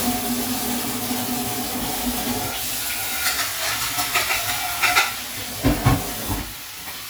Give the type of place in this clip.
kitchen